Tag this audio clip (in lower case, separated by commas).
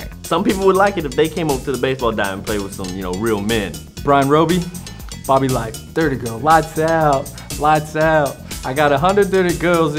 soundtrack music, music, speech